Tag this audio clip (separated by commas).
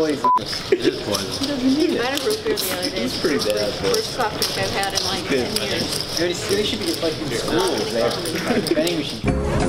Speech, Music